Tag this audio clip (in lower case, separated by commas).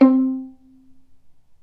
bowed string instrument, music, musical instrument